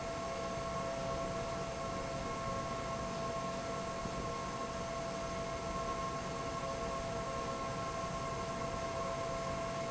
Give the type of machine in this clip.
fan